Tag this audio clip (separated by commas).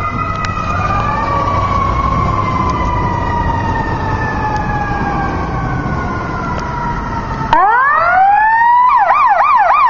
Fire engine